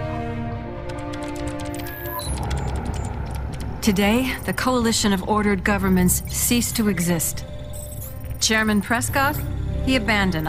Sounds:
speech, music

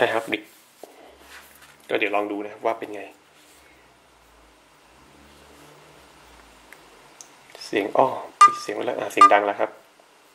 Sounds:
speech, inside a small room

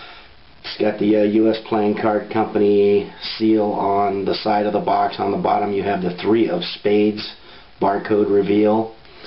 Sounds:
speech

